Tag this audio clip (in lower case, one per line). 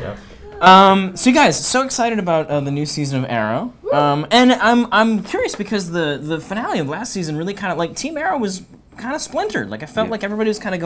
speech